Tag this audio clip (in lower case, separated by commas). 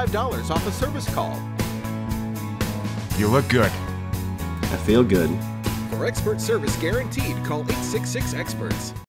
music, speech